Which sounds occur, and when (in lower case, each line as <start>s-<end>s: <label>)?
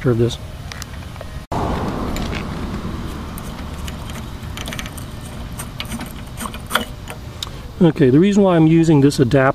0.0s-0.3s: male speech
0.0s-1.4s: mechanisms
0.7s-0.9s: tick
1.5s-9.5s: mechanisms
1.7s-1.9s: tools
2.1s-2.8s: tools
3.3s-4.2s: tools
4.5s-4.9s: tools
5.5s-6.9s: tools
7.0s-7.5s: tools
7.7s-9.5s: male speech